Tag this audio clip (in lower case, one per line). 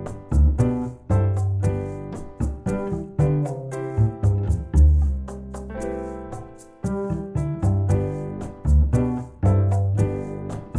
music
musical instrument